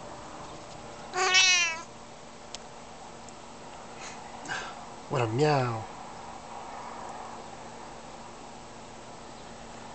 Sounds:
Speech, Domestic animals, Animal, Meow, Cat

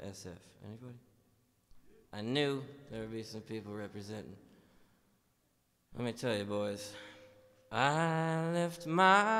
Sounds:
Speech

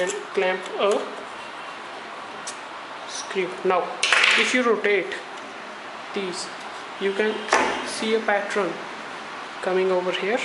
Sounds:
Speech

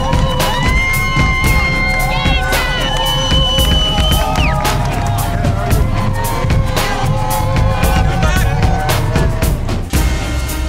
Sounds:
Crowd, Cheering

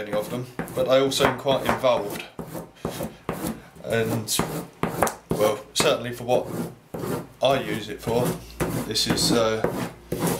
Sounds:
Speech

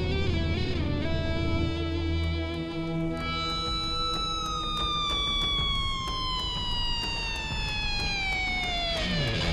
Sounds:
Music

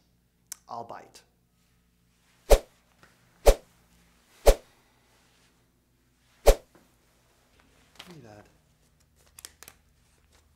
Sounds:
Speech

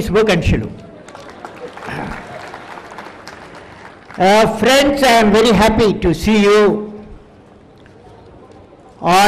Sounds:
man speaking, Speech

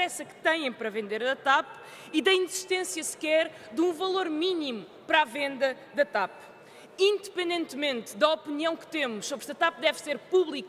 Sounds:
Speech

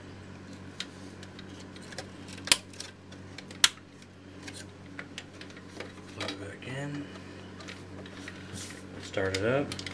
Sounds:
Speech

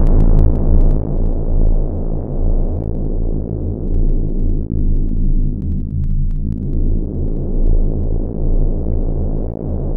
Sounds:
Music, Synthesizer

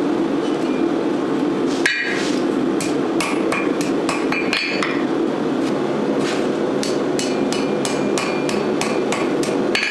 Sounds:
forging swords

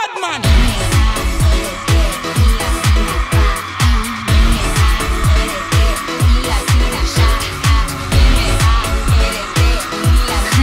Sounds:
Singing, Music of Asia

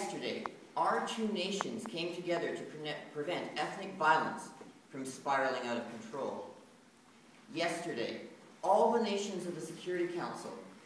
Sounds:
Speech, Male speech, monologue

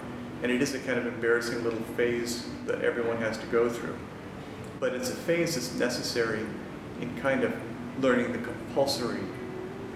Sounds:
Speech, Music

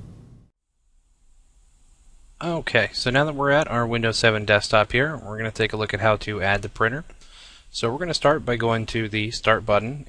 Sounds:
Speech

